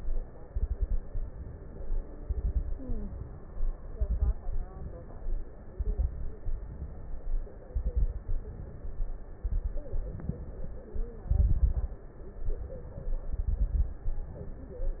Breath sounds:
0.47-0.98 s: exhalation
0.47-0.98 s: crackles
1.10-1.94 s: inhalation
2.24-2.75 s: exhalation
2.24-2.75 s: crackles
2.83-3.67 s: inhalation
3.99-4.35 s: exhalation
3.99-4.35 s: crackles
4.46-5.41 s: inhalation
5.76-6.36 s: exhalation
5.76-6.36 s: crackles
6.46-7.41 s: inhalation
7.71-8.32 s: exhalation
7.71-8.32 s: crackles
8.36-9.20 s: inhalation
9.44-9.94 s: exhalation
9.44-9.94 s: crackles
9.96-10.92 s: inhalation
9.96-10.92 s: crackles
11.27-12.06 s: exhalation
11.27-12.06 s: crackles
12.46-13.21 s: inhalation
13.32-14.12 s: exhalation
13.32-14.12 s: crackles
14.25-15.00 s: inhalation

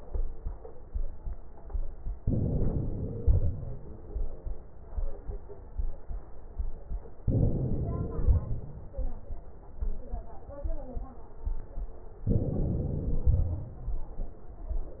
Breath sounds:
2.18-3.21 s: inhalation
3.21-4.01 s: exhalation
7.28-8.21 s: inhalation
8.21-8.97 s: exhalation
12.28-13.24 s: inhalation
13.24-13.97 s: exhalation

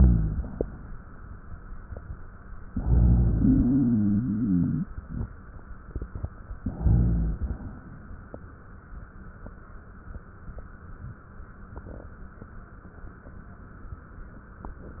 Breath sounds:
2.63-3.38 s: inhalation
3.39-5.38 s: exhalation
6.58-7.83 s: inhalation

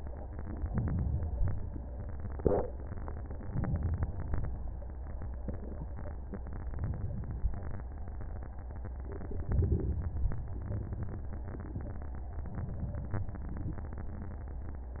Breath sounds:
0.69-1.47 s: inhalation
3.48-4.26 s: inhalation
9.48-10.26 s: inhalation

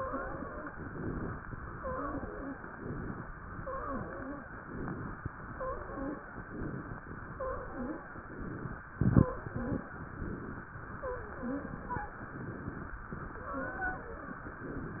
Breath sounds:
0.00-0.72 s: wheeze
0.76-1.43 s: inhalation
1.71-2.54 s: exhalation
1.71-2.54 s: wheeze
2.66-3.32 s: inhalation
3.53-4.46 s: exhalation
3.53-4.46 s: wheeze
4.57-5.24 s: inhalation
5.50-6.32 s: exhalation
5.50-6.32 s: wheeze
6.37-7.04 s: inhalation
7.29-8.22 s: exhalation
7.29-8.22 s: wheeze
8.25-8.80 s: inhalation
9.01-9.89 s: exhalation
9.01-9.89 s: wheeze
10.04-10.68 s: inhalation
10.98-12.18 s: exhalation
10.98-12.18 s: wheeze
12.24-13.04 s: inhalation
13.38-14.57 s: exhalation
13.38-14.57 s: wheeze

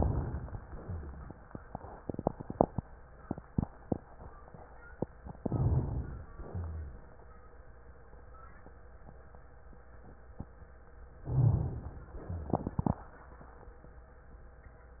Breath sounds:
0.00-0.65 s: inhalation
0.63-1.33 s: exhalation
0.63-1.33 s: rhonchi
5.40-6.31 s: inhalation
6.31-7.14 s: exhalation
6.31-7.14 s: rhonchi
11.25-12.10 s: inhalation
12.10-13.00 s: exhalation
12.10-13.00 s: rhonchi

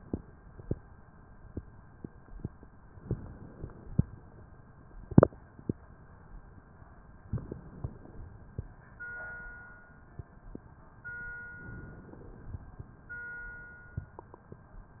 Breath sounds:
2.98-4.04 s: inhalation
7.27-8.45 s: inhalation
11.63-12.91 s: inhalation

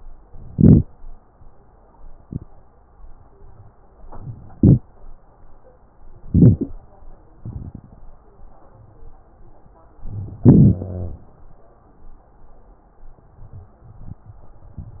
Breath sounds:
0.52-0.81 s: inhalation
4.57-4.87 s: inhalation
6.24-6.74 s: inhalation
10.45-10.84 s: inhalation
10.79-11.18 s: exhalation
10.79-11.18 s: wheeze

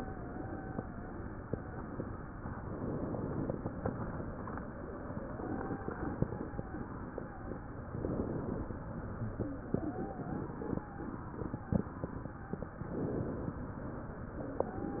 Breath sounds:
0.00-0.85 s: wheeze
5.28-7.58 s: wheeze
9.70-11.99 s: wheeze
14.61-15.00 s: wheeze

